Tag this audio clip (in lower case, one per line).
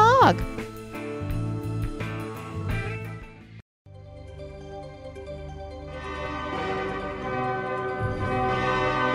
speech
music